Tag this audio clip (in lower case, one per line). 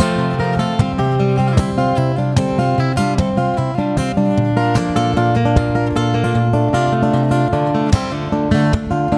tender music
music